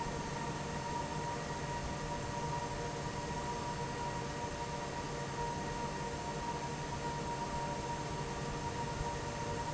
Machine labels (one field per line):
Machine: fan